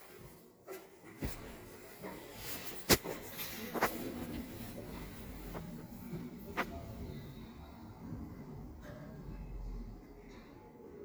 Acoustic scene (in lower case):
elevator